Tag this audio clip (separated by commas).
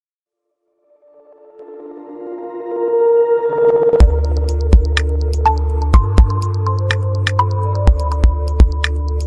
Music